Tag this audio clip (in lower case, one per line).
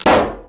explosion